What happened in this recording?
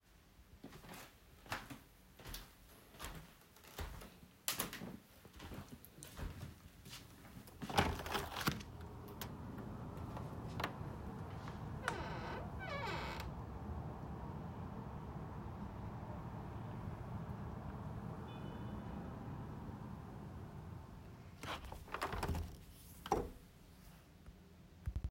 I walked and then opened the window and after closed it after seconds.